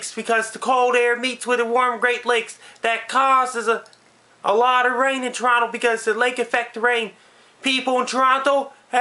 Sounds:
speech

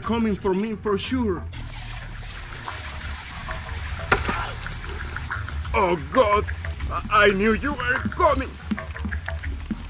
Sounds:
speech, music

